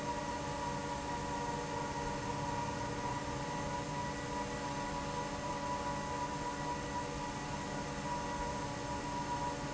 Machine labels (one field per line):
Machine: fan